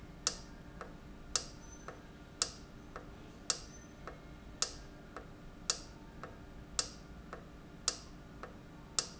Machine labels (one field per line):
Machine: valve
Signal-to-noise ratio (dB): 6 dB